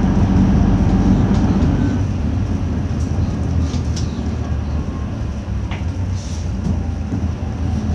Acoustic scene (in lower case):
bus